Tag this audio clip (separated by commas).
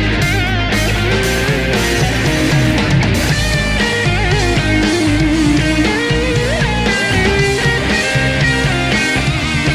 Guitar, Musical instrument, Plucked string instrument, Music, Electric guitar